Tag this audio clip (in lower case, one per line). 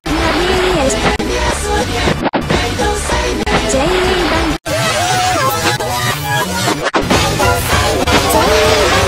music